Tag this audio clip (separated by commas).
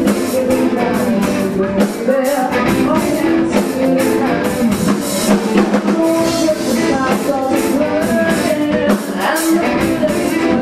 Music